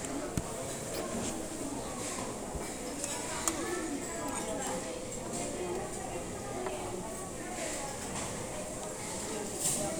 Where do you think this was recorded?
in a restaurant